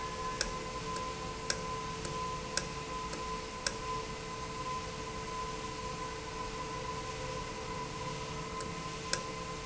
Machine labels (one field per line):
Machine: valve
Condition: normal